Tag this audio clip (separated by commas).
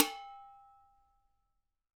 home sounds, dishes, pots and pans